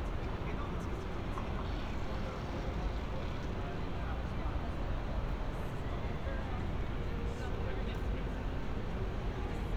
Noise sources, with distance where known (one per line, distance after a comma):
person or small group talking, near